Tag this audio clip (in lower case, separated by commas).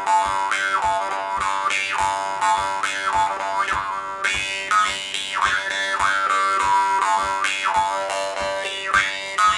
sound effect